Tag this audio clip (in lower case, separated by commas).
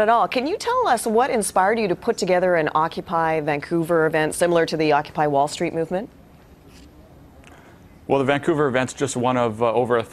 speech